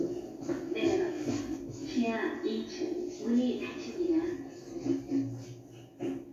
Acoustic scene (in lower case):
elevator